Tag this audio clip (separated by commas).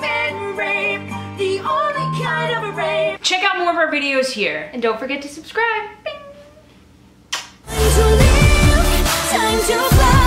Music, Speech, inside a small room